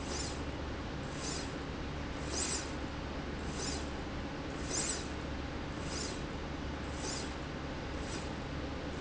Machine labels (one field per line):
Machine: slide rail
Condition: normal